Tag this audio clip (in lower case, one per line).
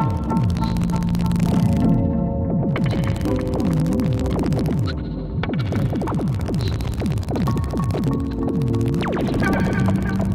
musical instrument
synthesizer
music